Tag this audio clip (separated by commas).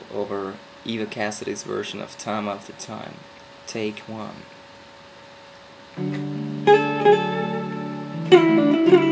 Plucked string instrument, Speech, Music, Acoustic guitar, Musical instrument, Guitar